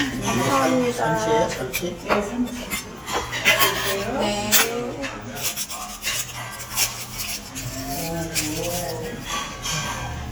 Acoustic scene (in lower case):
restaurant